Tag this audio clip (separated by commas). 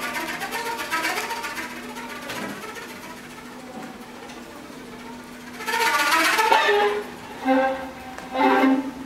Violin, Musical instrument, Music